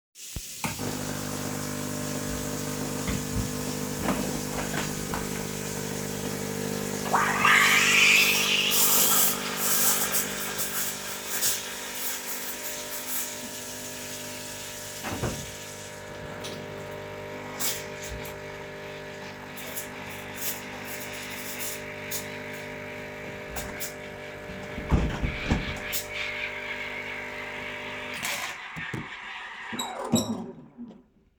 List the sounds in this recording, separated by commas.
running water, coffee machine, window